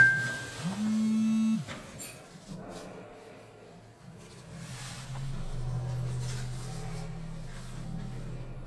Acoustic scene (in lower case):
elevator